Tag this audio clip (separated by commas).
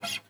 Music, Guitar, Acoustic guitar, Plucked string instrument, Musical instrument